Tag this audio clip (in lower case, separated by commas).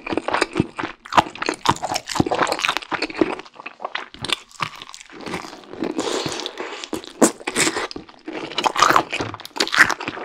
people eating noodle